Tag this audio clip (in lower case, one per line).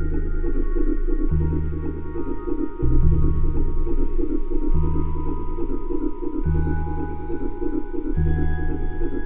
electronic music
music
electronica